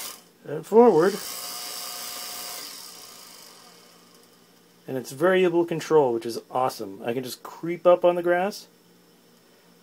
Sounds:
speech

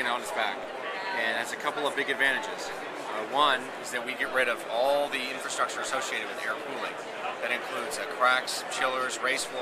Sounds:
speech

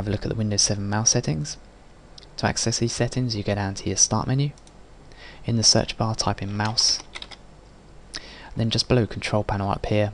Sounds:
mouse clicking

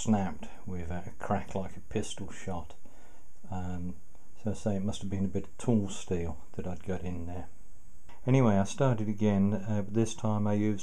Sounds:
speech

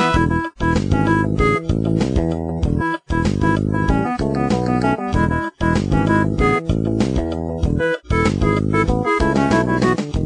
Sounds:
music

